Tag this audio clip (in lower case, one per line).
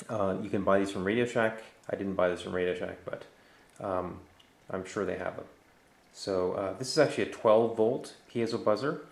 speech